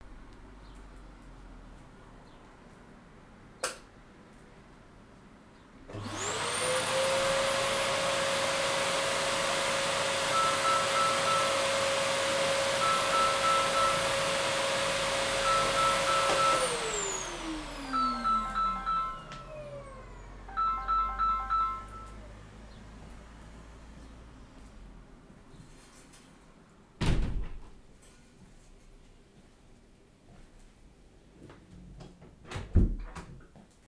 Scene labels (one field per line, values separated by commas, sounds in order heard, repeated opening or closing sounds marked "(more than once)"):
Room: living room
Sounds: light switch, vacuum cleaner, phone ringing, window, door